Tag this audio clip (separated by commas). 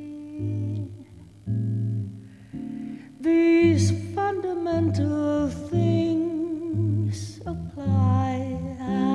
Music, Musical instrument, Singing